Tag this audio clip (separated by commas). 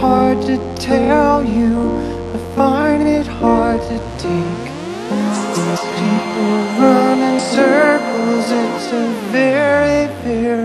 Music, Electronic music